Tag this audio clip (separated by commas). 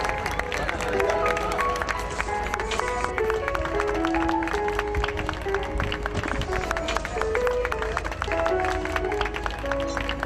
Speech, Music